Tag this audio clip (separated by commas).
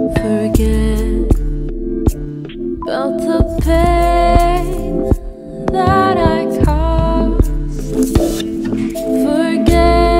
Sad music, Music